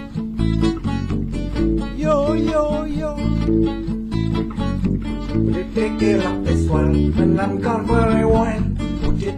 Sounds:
Music

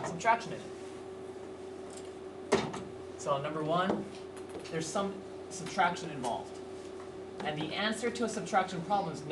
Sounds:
Speech

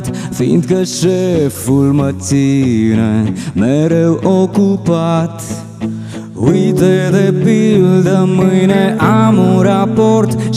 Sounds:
Music

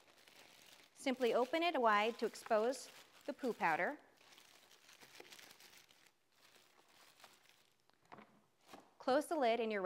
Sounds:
Speech, inside a small room

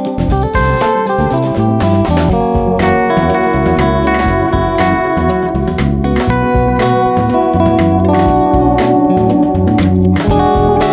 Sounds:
Music, Musical instrument

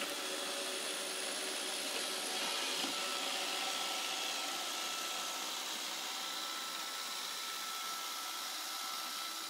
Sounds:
Vacuum cleaner

